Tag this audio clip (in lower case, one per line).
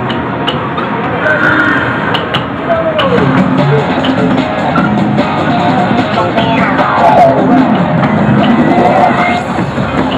speech
music